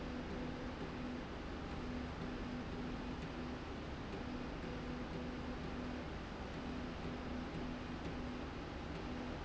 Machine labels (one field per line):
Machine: slide rail